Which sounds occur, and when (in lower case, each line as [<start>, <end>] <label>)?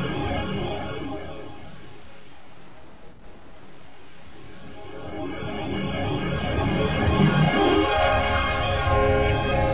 [0.00, 9.73] sound effect